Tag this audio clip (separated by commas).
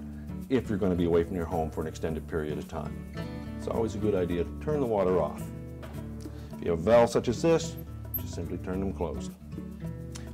Speech, Music